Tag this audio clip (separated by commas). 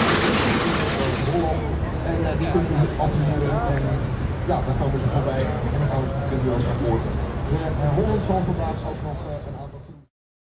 Speech